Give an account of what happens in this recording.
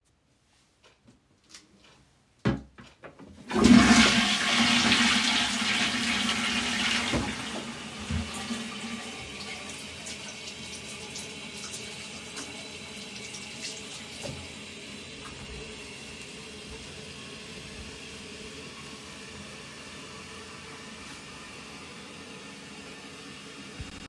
I closed the toilet lid and flushed the toilet. Then I turned to the sink, turned on the water, washed my hands and dried them with a towel.